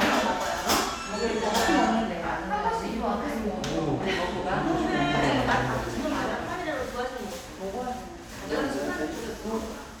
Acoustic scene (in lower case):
crowded indoor space